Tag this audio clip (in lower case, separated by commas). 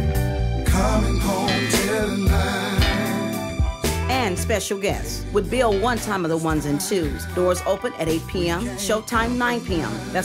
speech, funk, blues, soul music, rhythm and blues, music